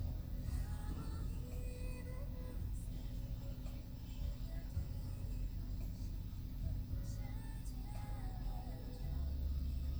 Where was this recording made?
in a car